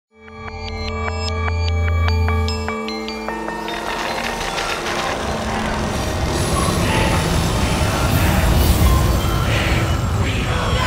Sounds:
music

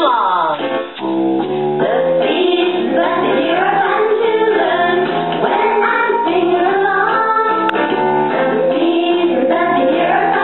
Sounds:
female singing, music

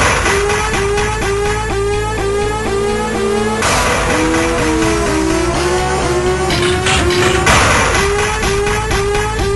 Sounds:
music

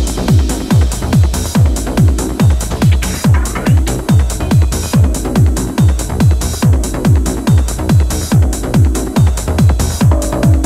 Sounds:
music

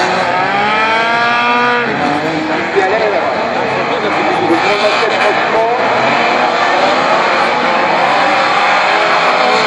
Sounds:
vehicle, car, speech, motor vehicle (road)

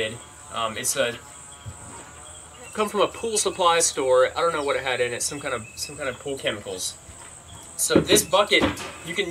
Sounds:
speech

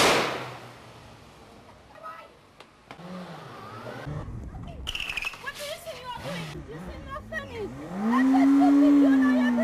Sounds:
medium engine (mid frequency), vehicle, engine, speech, vroom

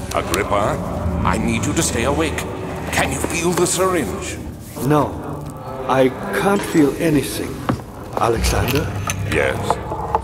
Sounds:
speech

